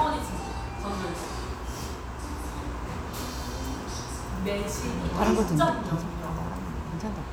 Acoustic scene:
restaurant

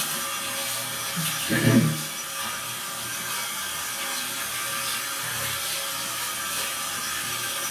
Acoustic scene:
restroom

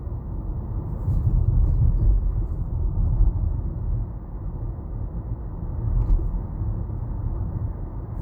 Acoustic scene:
car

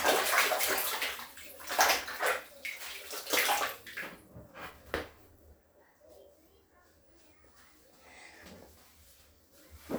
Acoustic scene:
restroom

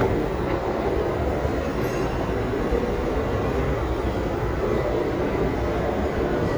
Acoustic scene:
crowded indoor space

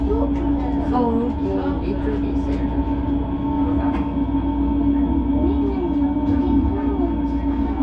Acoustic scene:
subway train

